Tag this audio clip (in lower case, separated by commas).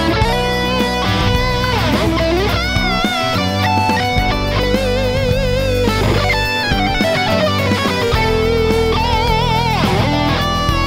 plucked string instrument, music, strum, guitar, musical instrument, bass guitar